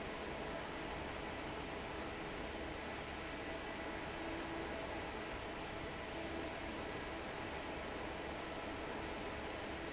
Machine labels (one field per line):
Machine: fan